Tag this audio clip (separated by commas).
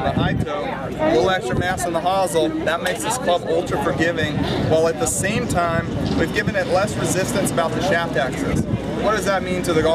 Speech